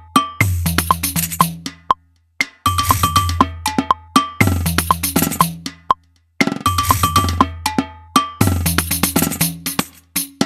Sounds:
music
wood block

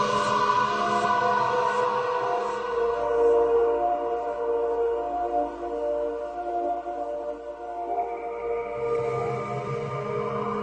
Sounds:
music
electronic music

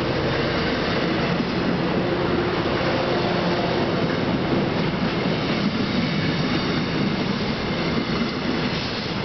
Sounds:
vehicle
train
railroad car

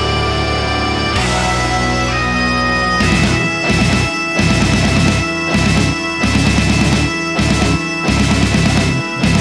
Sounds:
playing bagpipes

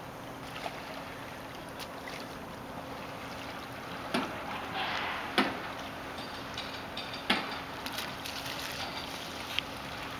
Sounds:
canoe
water vehicle

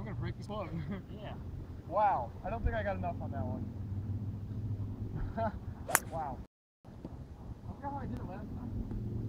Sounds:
speech

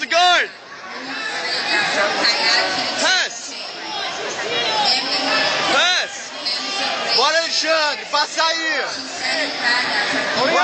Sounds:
speech
inside a public space

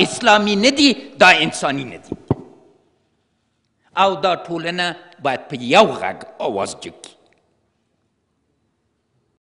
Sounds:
male speech
speech

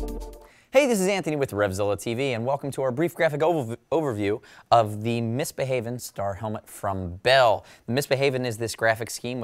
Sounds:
speech
music

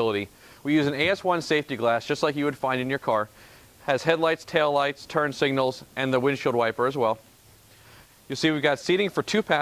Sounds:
speech

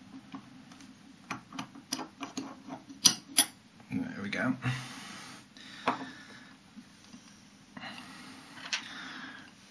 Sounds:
speech

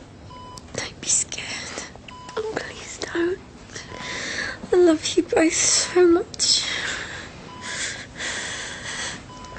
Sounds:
whispering

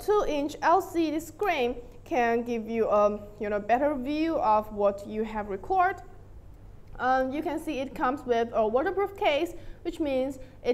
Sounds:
speech

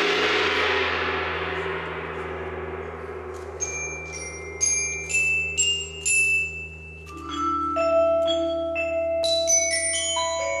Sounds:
xylophone
percussion
music
marimba
vibraphone
musical instrument

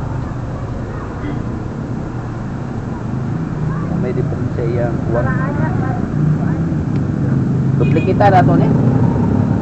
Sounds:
speech

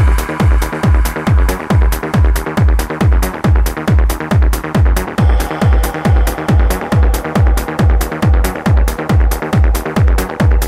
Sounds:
sound effect
music

